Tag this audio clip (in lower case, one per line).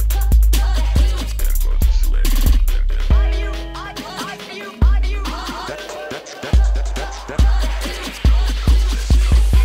music